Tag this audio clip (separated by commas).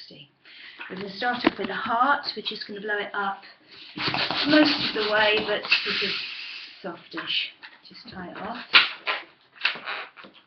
Speech